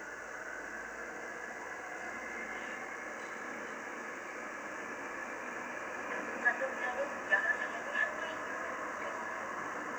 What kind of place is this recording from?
subway train